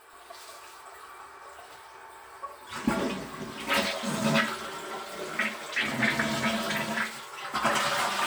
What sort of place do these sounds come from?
restroom